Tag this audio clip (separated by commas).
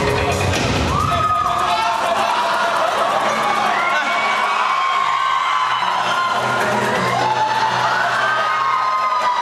Speech, Music